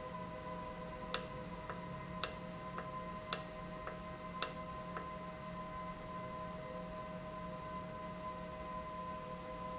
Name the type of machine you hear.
valve